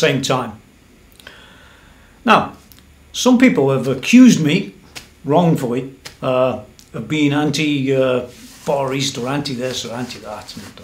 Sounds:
speech

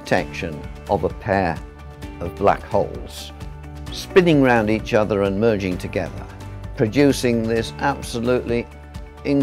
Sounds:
music, speech

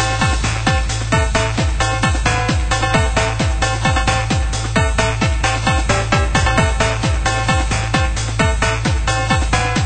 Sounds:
music, electronic music, techno

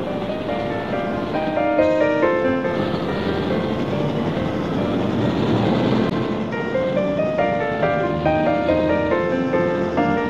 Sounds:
music

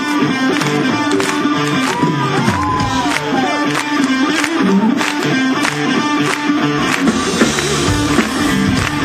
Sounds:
music, blues, crowd

